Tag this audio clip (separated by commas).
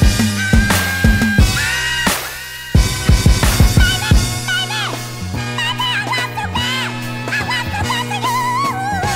Music